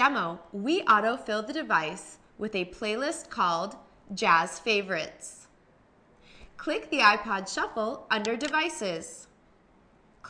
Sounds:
Speech

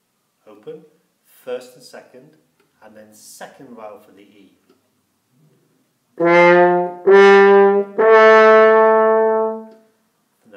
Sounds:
playing french horn

